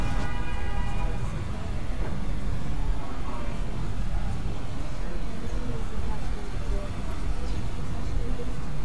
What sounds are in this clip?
car horn, person or small group talking